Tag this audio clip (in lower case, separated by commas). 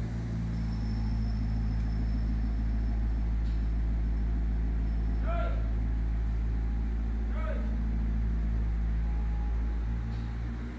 speech, vehicle, car